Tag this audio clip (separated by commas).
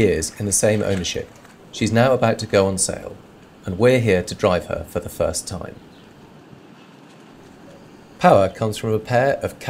Speech